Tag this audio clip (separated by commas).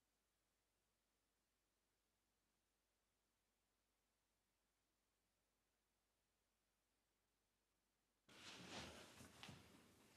Silence